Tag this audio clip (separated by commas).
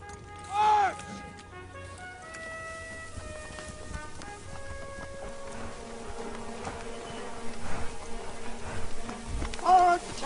Horse, Music, Animal, Clip-clop, Speech